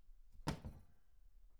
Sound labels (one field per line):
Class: cupboard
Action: closing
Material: metal